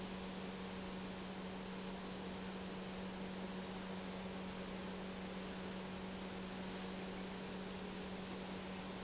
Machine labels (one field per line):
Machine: pump